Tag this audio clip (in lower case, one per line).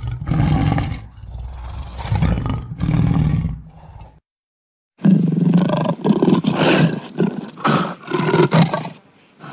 lions roaring